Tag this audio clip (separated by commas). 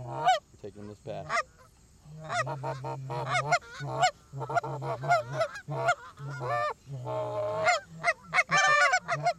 goose honking